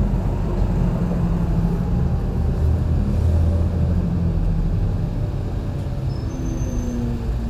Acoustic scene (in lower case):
bus